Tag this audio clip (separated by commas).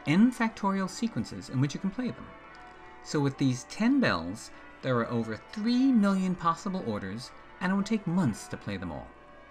Speech, Music